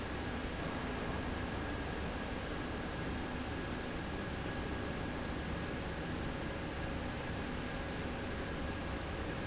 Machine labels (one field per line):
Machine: slide rail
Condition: normal